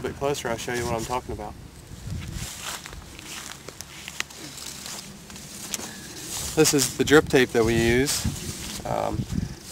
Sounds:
speech

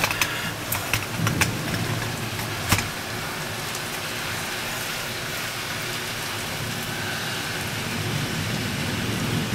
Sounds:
thunderstorm
rain

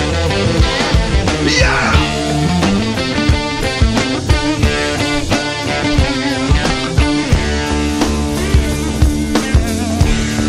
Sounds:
rock music

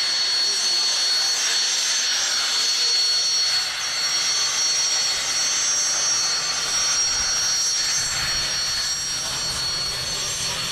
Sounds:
jet engine

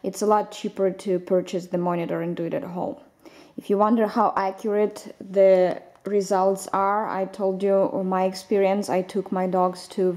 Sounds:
speech

